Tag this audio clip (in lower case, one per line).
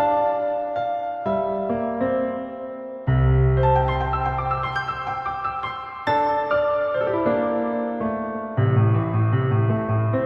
music